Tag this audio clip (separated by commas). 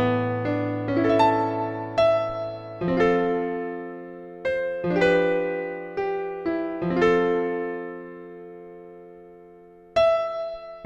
Music